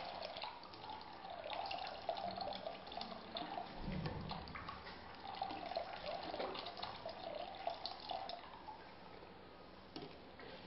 Water is trickling down slowly